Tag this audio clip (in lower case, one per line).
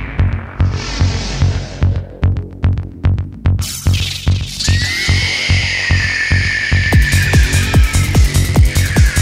sampler
throbbing
music